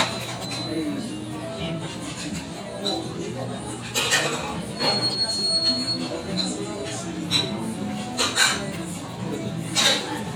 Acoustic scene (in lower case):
restaurant